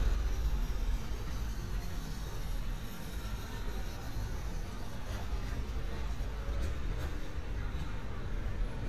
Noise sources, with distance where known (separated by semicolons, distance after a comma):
engine of unclear size; person or small group talking, far